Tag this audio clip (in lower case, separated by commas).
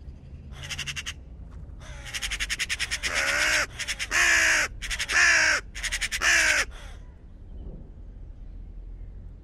crow cawing